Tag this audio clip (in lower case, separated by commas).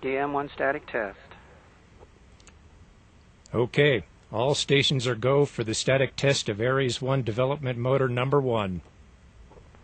speech